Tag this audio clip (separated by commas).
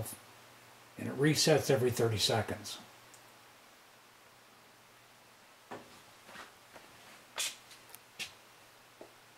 Speech